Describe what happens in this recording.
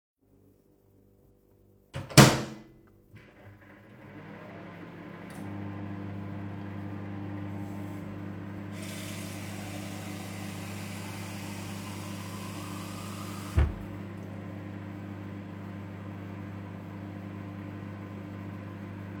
Closed the microwave and turned it on, while it was running I picked up a glass and pouring myself some water